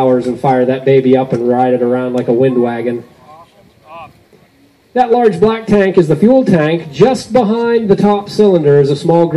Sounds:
Speech

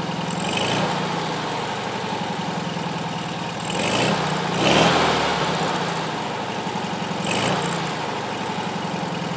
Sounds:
Vehicle, Car, outside, urban or man-made

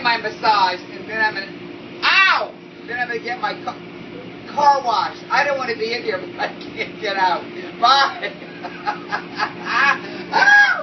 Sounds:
Speech, inside a large room or hall

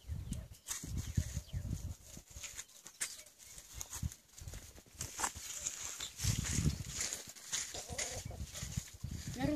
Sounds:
Animal

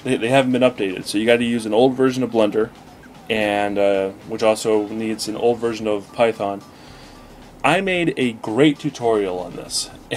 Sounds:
Speech, Music

